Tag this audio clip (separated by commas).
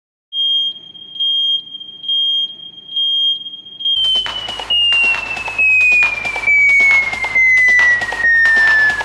Music